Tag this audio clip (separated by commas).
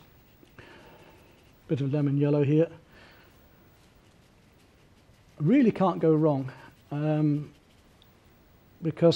Speech